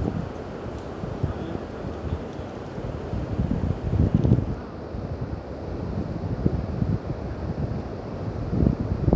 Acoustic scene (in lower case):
park